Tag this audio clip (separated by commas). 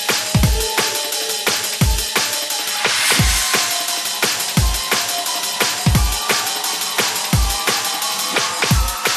Music